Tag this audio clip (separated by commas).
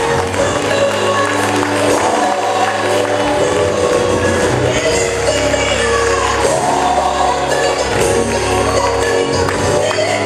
Tambourine, Music